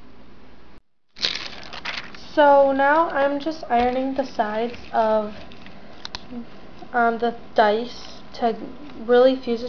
A crinkling sound, and then a woman speaking